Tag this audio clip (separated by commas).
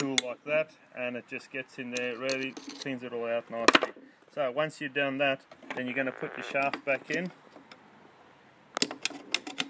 Speech